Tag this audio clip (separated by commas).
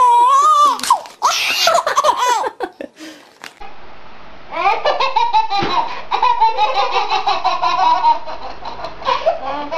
baby laughter